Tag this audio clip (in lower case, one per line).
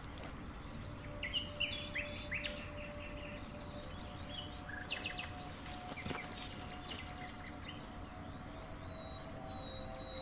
bird call
tweeting
chirp
bird